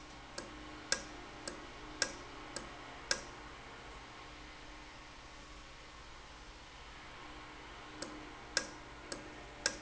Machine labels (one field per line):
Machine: valve